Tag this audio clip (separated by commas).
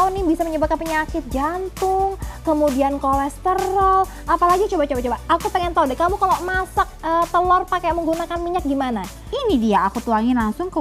Speech, Music